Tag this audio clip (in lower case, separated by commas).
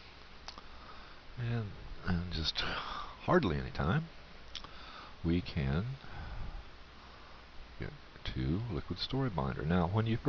speech